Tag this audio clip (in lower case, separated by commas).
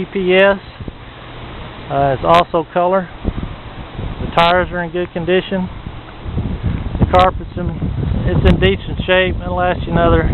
wind, wind noise (microphone)